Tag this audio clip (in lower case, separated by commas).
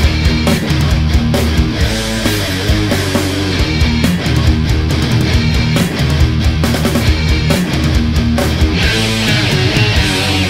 heavy metal